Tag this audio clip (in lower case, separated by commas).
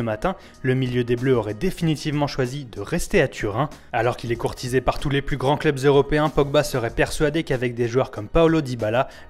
music, speech